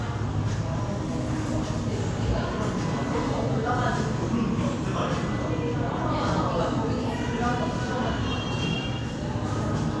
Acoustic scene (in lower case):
cafe